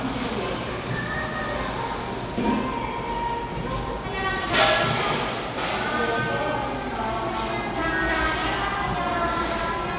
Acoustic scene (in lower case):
cafe